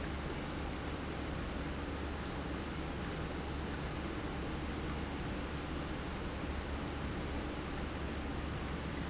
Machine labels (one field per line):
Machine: pump